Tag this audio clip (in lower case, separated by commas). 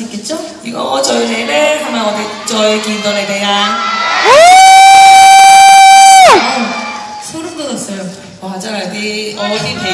inside a large room or hall, speech